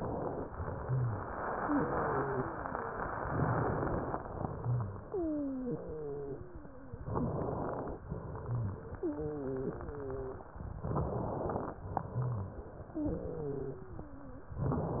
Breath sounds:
0.78-1.26 s: rhonchi
1.58-2.56 s: wheeze
4.56-5.04 s: rhonchi
5.00-7.04 s: wheeze
7.02-8.02 s: inhalation
8.06-10.80 s: exhalation
8.40-8.88 s: rhonchi
8.92-10.48 s: wheeze
10.86-11.86 s: inhalation
11.92-14.54 s: exhalation
12.16-12.64 s: rhonchi
12.94-14.54 s: wheeze
14.62-15.00 s: inhalation

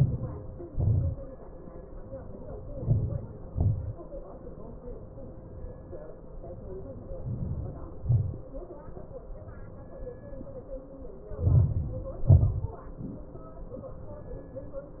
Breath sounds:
0.00-0.97 s: inhalation
0.97-1.58 s: exhalation
2.50-3.42 s: inhalation
3.47-4.20 s: exhalation
6.85-7.95 s: inhalation
7.99-8.67 s: exhalation
11.12-12.22 s: inhalation
12.18-13.04 s: exhalation

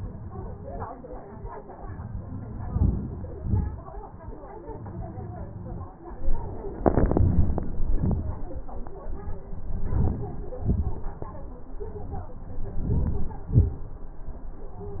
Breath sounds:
2.76-3.29 s: inhalation
3.40-3.78 s: exhalation
9.94-10.47 s: inhalation
10.61-11.00 s: exhalation
12.85-13.35 s: inhalation
13.51-13.90 s: exhalation

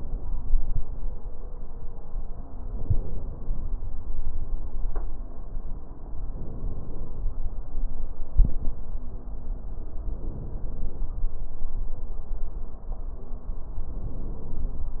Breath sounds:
2.60-3.67 s: inhalation
6.26-7.33 s: inhalation
10.03-11.10 s: inhalation
13.89-14.96 s: inhalation

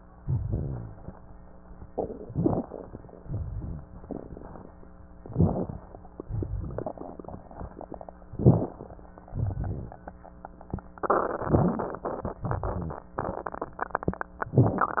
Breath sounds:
0.13-1.06 s: exhalation
0.13-1.06 s: rhonchi
2.16-2.68 s: inhalation
2.16-2.68 s: crackles
3.21-3.91 s: exhalation
3.21-3.91 s: rhonchi
5.28-5.88 s: inhalation
5.28-5.88 s: crackles
6.28-6.98 s: exhalation
6.28-6.98 s: crackles
8.24-8.79 s: inhalation
8.24-8.79 s: crackles
9.34-10.04 s: exhalation
9.34-10.04 s: crackles

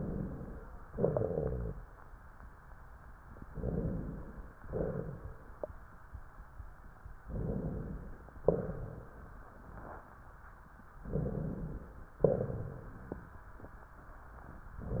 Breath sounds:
0.85-2.07 s: exhalation
0.85-2.07 s: rhonchi
3.49-4.58 s: inhalation
4.58-5.67 s: exhalation
7.27-8.45 s: inhalation
8.42-9.40 s: exhalation
11.08-12.21 s: inhalation
12.21-13.42 s: exhalation

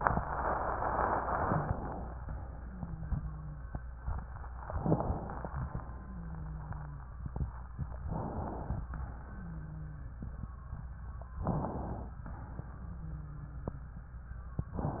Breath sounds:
2.45-3.62 s: wheeze
2.49-3.66 s: wheeze
4.80-5.52 s: inhalation
8.12-8.84 s: inhalation
9.20-10.29 s: wheeze
11.42-12.14 s: inhalation
13.02-14.19 s: wheeze

